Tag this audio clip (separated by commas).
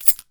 Rattle